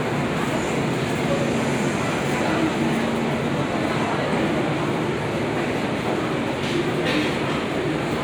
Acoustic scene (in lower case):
subway station